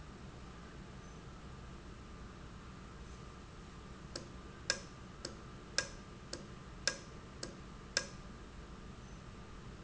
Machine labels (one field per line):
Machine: valve